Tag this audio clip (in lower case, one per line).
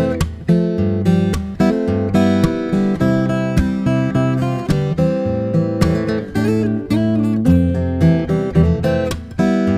acoustic guitar
guitar
plucked string instrument
musical instrument
music
strum